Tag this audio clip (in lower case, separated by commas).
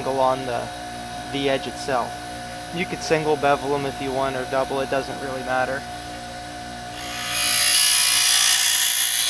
speech